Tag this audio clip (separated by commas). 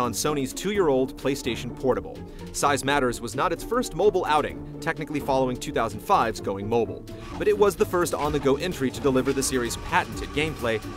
Music, Speech